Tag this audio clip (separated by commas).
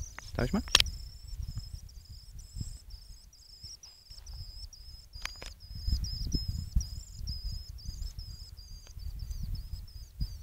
barn swallow calling